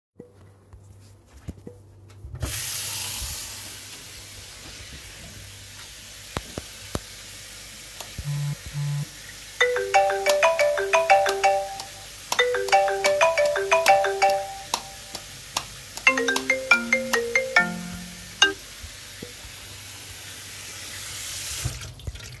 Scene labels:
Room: kitchen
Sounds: running water, phone ringing, light switch

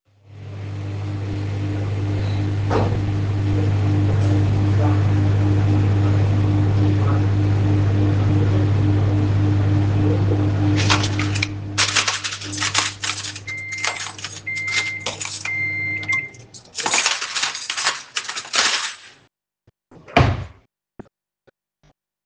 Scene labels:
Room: kitchen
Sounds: microwave, cutlery and dishes, wardrobe or drawer

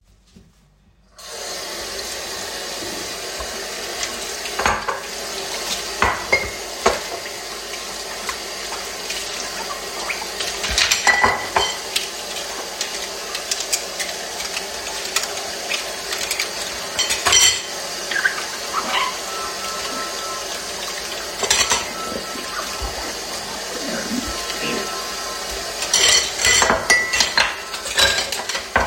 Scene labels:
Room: kitchen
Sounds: running water, cutlery and dishes, phone ringing

